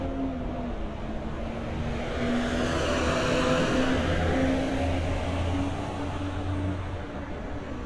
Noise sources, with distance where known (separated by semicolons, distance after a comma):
medium-sounding engine, near